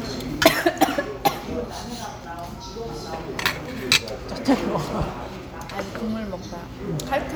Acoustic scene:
restaurant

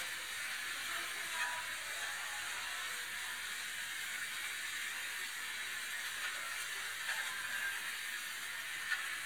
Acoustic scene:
restaurant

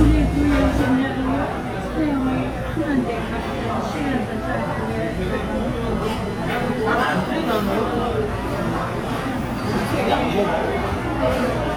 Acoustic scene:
restaurant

